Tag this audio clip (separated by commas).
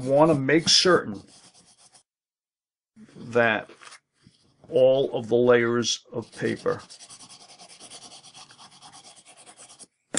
Speech, inside a small room